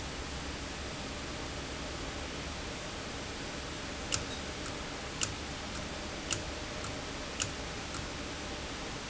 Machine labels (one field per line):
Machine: valve